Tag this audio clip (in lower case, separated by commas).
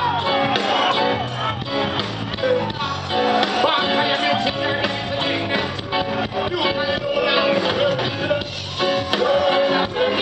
music, blues